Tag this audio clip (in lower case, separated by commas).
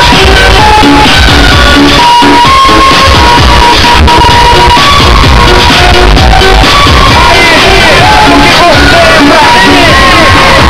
music